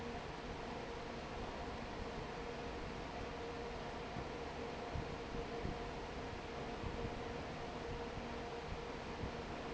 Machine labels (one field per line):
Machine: fan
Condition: normal